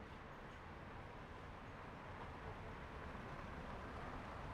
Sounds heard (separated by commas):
car, car engine idling, car wheels rolling